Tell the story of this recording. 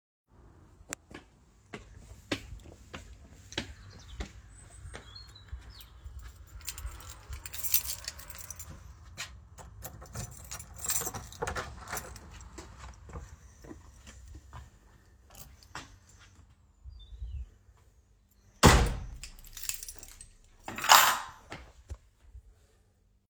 I walked to the front door took out my keys and opened the door. I then stepped through the door and closed it behind me. Finally I dropped the keys into the keybowl